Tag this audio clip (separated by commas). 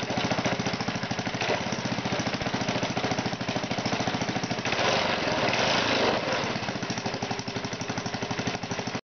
Engine, Idling